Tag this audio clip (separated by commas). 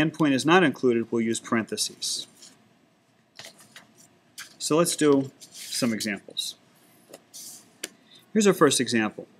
Speech